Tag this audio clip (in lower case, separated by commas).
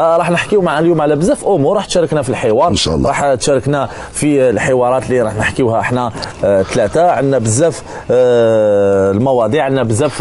speech